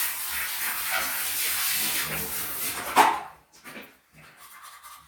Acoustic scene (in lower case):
restroom